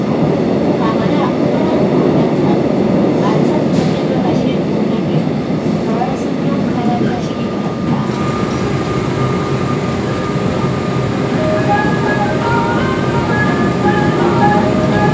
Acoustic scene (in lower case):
subway train